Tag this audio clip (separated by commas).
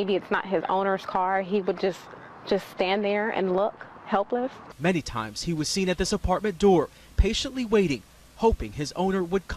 Speech